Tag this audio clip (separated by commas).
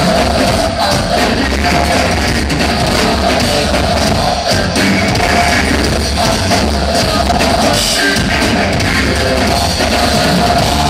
Pop music, Music